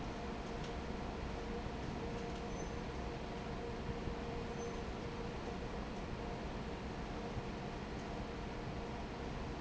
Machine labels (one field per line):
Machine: fan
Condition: normal